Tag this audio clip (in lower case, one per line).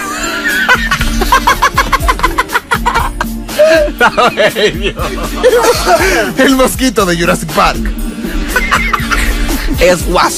music
speech